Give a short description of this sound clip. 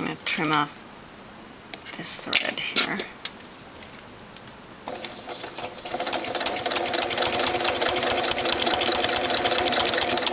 A woman is verbalizing something then sudden a machine starts operating